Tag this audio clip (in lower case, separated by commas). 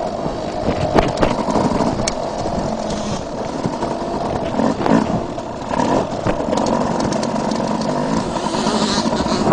footsteps, electric razor